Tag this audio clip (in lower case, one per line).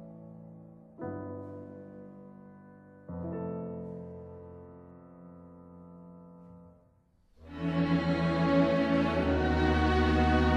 music